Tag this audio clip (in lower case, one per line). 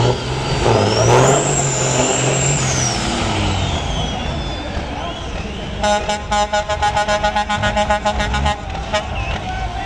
vehicle
truck
speech